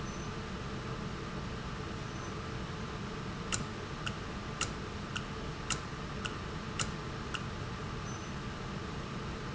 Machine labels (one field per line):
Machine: valve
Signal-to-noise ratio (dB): -6 dB